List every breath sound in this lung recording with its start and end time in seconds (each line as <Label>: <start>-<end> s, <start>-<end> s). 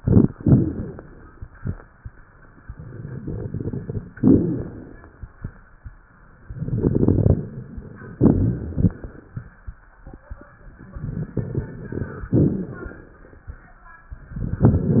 Inhalation: 0.36-1.20 s, 4.14-4.97 s, 8.23-9.34 s, 12.33-13.17 s
Exhalation: 6.47-7.48 s, 10.83-12.28 s
Crackles: 0.36-1.20 s, 2.60-4.10 s, 4.14-4.97 s, 6.47-8.16 s, 8.23-9.34 s, 10.83-12.28 s, 12.33-13.17 s